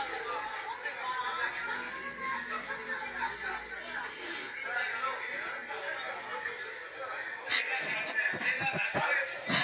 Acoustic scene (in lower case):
crowded indoor space